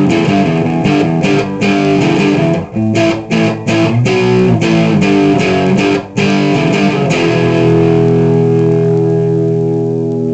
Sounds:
Reverberation, Music

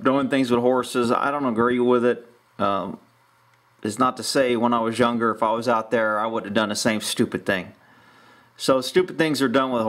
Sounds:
Speech

